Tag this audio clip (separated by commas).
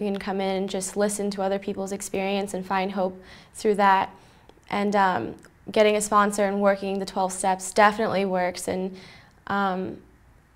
Speech